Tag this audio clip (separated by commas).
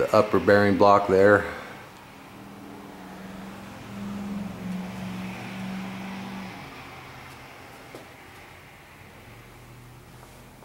Speech